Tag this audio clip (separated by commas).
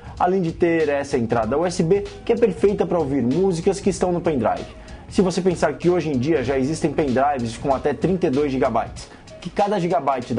Music, Speech